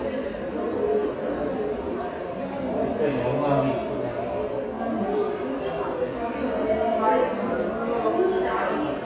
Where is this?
in a subway station